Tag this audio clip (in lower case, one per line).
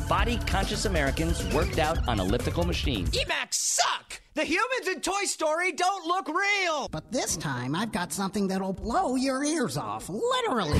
music
speech